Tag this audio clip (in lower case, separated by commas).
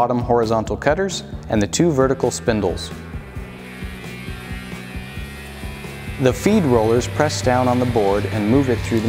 planing timber